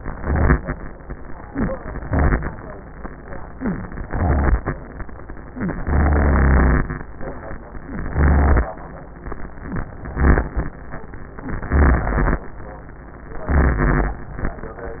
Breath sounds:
0.15-0.74 s: inhalation
2.05-2.64 s: inhalation
4.04-4.63 s: inhalation
5.84-6.93 s: inhalation
8.06-8.73 s: inhalation
10.07-10.74 s: inhalation
11.69-12.49 s: inhalation
13.53-14.33 s: inhalation

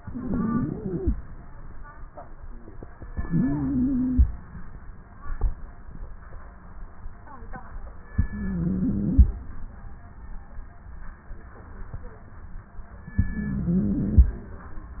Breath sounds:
0.00-1.12 s: inhalation
0.00-1.12 s: wheeze
3.13-4.25 s: inhalation
3.13-4.25 s: wheeze
8.15-9.27 s: inhalation
8.15-9.27 s: wheeze
13.21-14.33 s: inhalation
13.21-14.33 s: wheeze

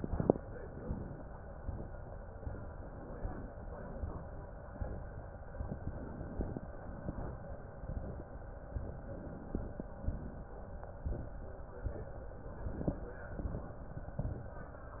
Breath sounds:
5.71-6.64 s: inhalation
6.75-7.36 s: exhalation
8.96-9.89 s: inhalation
9.98-10.59 s: exhalation
12.39-13.28 s: inhalation
13.36-13.87 s: exhalation

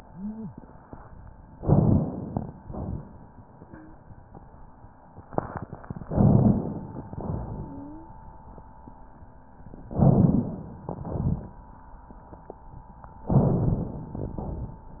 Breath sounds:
1.59-2.60 s: inhalation
2.60-3.04 s: exhalation
3.52-4.01 s: wheeze
6.07-7.10 s: inhalation
7.10-7.89 s: exhalation
7.65-8.14 s: wheeze
9.92-10.89 s: inhalation
10.89-11.57 s: exhalation
13.34-14.32 s: inhalation
14.32-15.00 s: exhalation

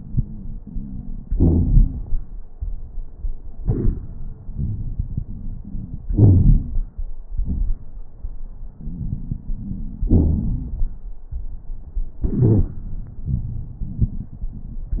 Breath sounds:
0.00-1.31 s: inhalation
0.00-1.31 s: wheeze
1.31-2.13 s: exhalation
1.31-2.13 s: crackles
4.58-6.03 s: inhalation
4.58-6.03 s: crackles
6.04-6.82 s: exhalation
6.04-6.82 s: crackles
8.85-10.10 s: inhalation
8.85-10.10 s: crackles
10.13-11.00 s: exhalation
10.13-11.00 s: crackles

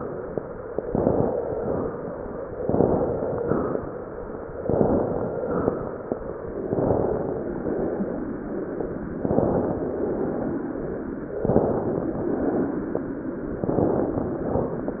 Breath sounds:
0.81-1.37 s: inhalation
1.52-2.07 s: exhalation
2.62-3.36 s: inhalation
3.36-3.98 s: exhalation
4.59-5.39 s: inhalation
5.39-5.92 s: exhalation
6.70-7.61 s: inhalation
7.61-8.29 s: exhalation
9.17-9.85 s: inhalation
9.85-10.84 s: exhalation
11.44-12.26 s: inhalation
12.26-13.07 s: exhalation
13.68-14.49 s: inhalation
14.48-15.00 s: exhalation

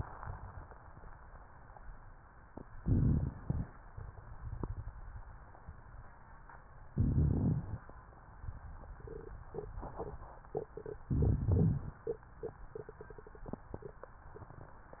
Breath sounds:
2.77-3.67 s: inhalation
2.77-3.67 s: rhonchi
3.94-5.17 s: exhalation
6.95-7.85 s: inhalation
6.95-7.85 s: rhonchi
11.10-12.00 s: inhalation
11.10-12.00 s: rhonchi

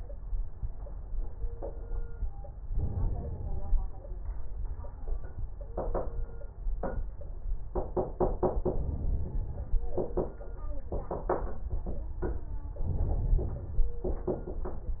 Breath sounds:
2.65-3.85 s: crackles
2.67-3.87 s: inhalation
8.66-9.86 s: inhalation
12.79-13.91 s: inhalation
12.79-13.91 s: crackles

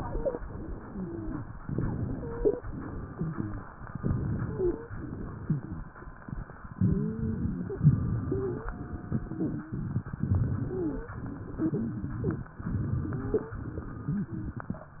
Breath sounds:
0.00-0.38 s: wheeze
0.38-1.52 s: exhalation
0.78-1.43 s: wheeze
1.61-2.58 s: inhalation
2.13-2.60 s: wheeze
2.66-3.63 s: exhalation
3.06-3.66 s: wheeze
3.85-4.82 s: inhalation
4.42-4.93 s: wheeze
4.92-5.88 s: exhalation
5.41-5.84 s: wheeze
6.74-7.71 s: inhalation
6.79-7.46 s: wheeze
7.78-8.71 s: exhalation
8.23-8.73 s: wheeze
8.71-9.64 s: inhalation
9.24-9.79 s: wheeze
10.19-11.12 s: exhalation
10.64-11.20 s: wheeze
11.54-12.47 s: inhalation
11.59-12.49 s: wheeze
12.58-13.51 s: exhalation
13.11-13.59 s: wheeze
13.60-14.54 s: inhalation
14.06-14.54 s: wheeze

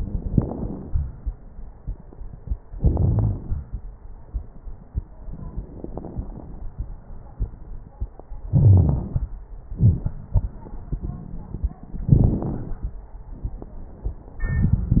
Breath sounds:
0.32-0.90 s: inhalation
0.32-0.90 s: crackles
2.74-3.39 s: wheeze
2.77-3.61 s: exhalation
5.70-6.71 s: inhalation
5.70-6.71 s: crackles
8.52-9.10 s: wheeze
8.52-9.30 s: exhalation
12.03-12.84 s: inhalation
12.03-12.84 s: crackles
14.45-15.00 s: exhalation
14.45-15.00 s: crackles

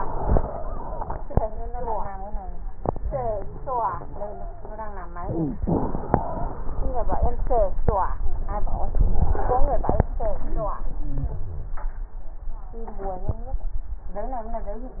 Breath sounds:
0.00-1.21 s: exhalation
0.00-1.21 s: wheeze
5.16-5.62 s: inhalation
5.16-5.62 s: crackles
5.64-7.90 s: exhalation
5.64-7.90 s: wheeze

